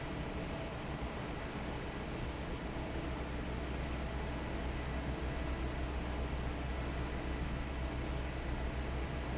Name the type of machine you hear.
fan